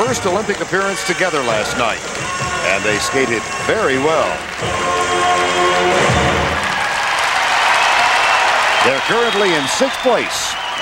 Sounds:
music, speech

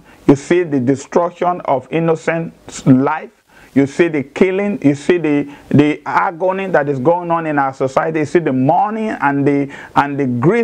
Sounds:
speech

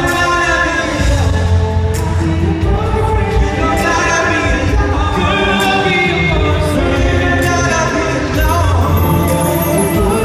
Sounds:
male singing, music

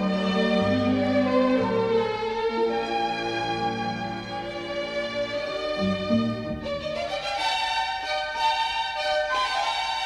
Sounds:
music, soundtrack music

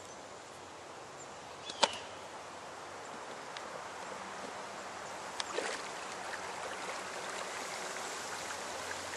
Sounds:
vehicle, boat, canoe, rowboat

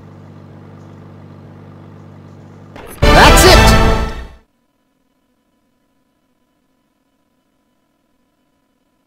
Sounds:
speech

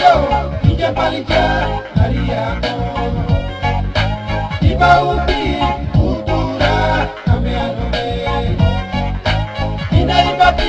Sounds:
music

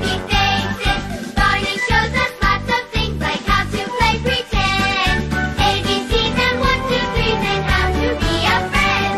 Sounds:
music, tick

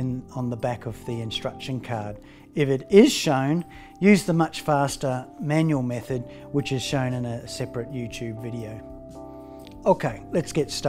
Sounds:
music, speech

